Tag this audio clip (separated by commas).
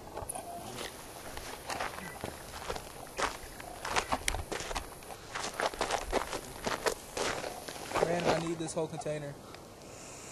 footsteps, Animal, Speech, Snake